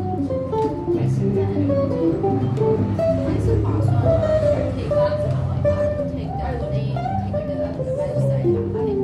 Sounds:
inside a small room
music
musical instrument
speech

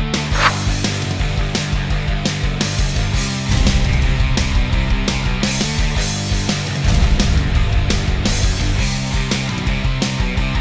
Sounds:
music

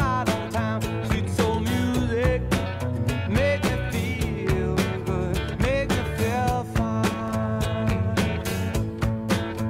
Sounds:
rock and roll
roll
music

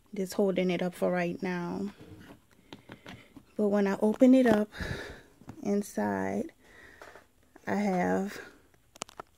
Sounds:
speech

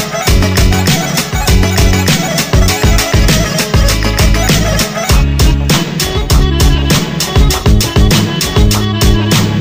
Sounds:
music

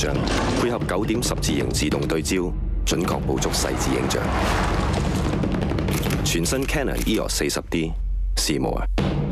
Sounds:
single-lens reflex camera
music
speech

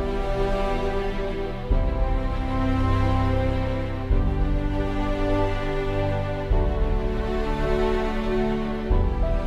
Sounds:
music

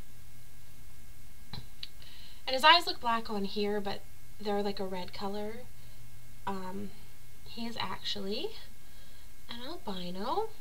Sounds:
speech

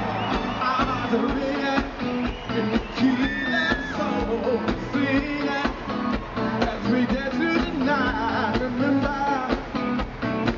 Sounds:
music

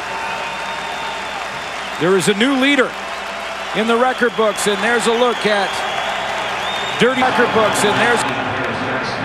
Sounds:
speech

